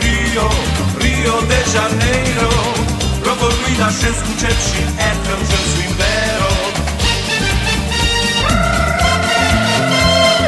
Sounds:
Salsa music

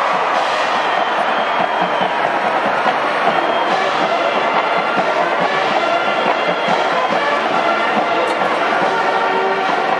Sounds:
Music

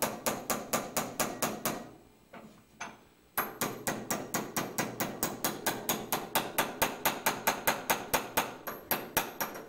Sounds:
Hammer

